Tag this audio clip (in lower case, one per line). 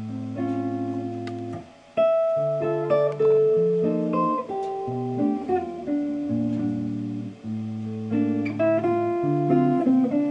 plucked string instrument
musical instrument
guitar
electric guitar
music